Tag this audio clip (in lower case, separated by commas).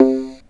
keyboard (musical), musical instrument, music